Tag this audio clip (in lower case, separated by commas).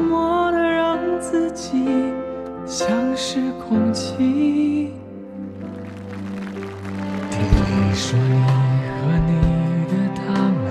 music